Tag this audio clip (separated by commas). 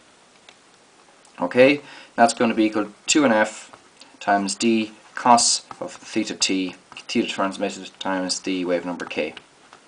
Speech, inside a small room